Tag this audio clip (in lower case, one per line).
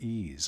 speech
man speaking
human voice